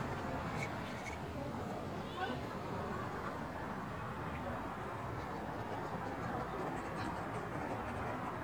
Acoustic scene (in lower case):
residential area